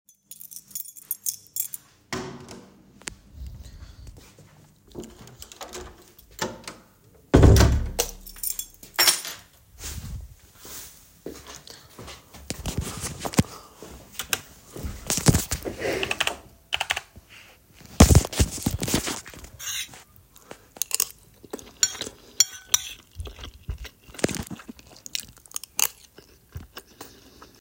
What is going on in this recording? I went back home straight to my room to watch some youtube while eating a meal i left on the desk before leaving